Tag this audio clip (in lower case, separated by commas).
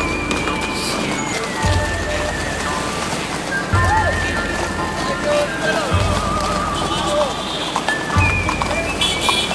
horse, music, neigh, clip-clop, animal, speech